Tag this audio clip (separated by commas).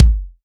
Bass drum, Percussion, Musical instrument, Music, Drum